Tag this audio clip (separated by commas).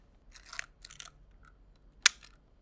Mechanisms, Camera